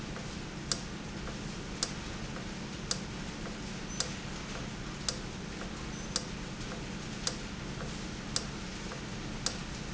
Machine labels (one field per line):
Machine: valve